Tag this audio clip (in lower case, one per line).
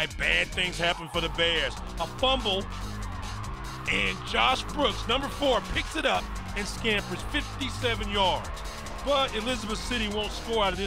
speech
music